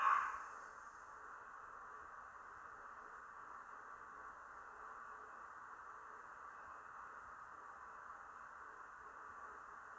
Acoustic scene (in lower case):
elevator